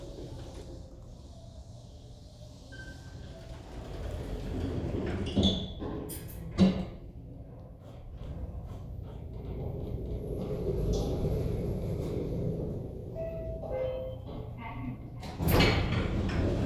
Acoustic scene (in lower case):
elevator